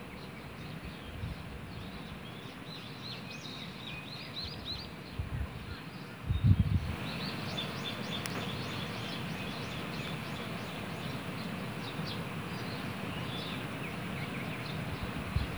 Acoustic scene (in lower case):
park